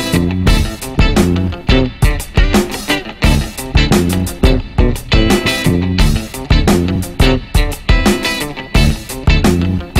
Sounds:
music

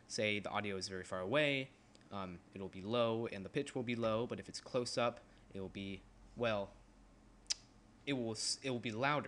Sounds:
speech

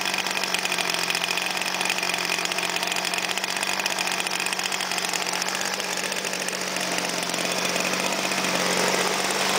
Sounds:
heavy engine (low frequency)

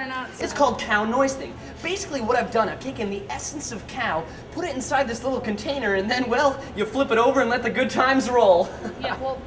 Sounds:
speech

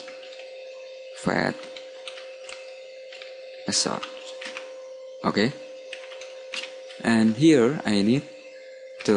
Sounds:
computer keyboard
speech

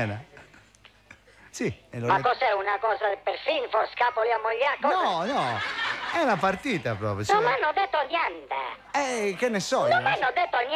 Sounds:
radio
speech

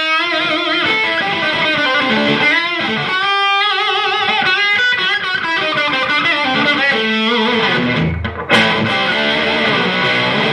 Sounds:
music

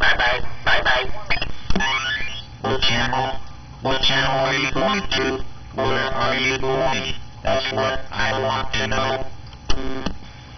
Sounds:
speech
radio

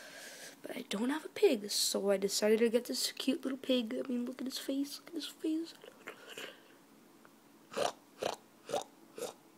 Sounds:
speech
inside a small room

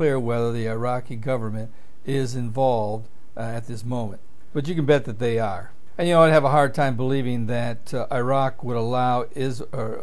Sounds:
speech

